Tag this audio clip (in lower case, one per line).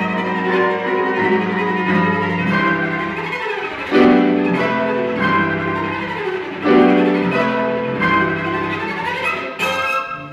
piano
music
cello
bowed string instrument
musical instrument